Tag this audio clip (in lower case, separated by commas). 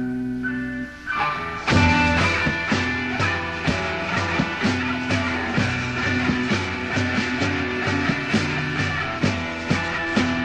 music